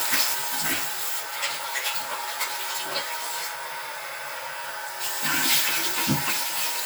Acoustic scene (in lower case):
restroom